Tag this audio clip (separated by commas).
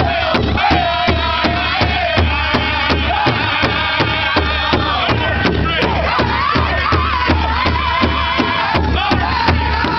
Speech, Music